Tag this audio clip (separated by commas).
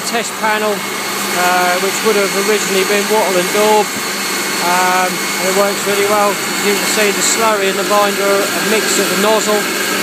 Speech, Spray